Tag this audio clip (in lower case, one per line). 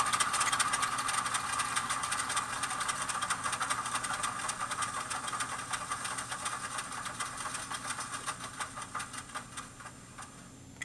train